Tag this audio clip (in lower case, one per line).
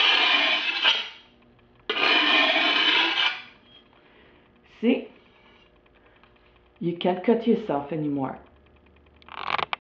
speech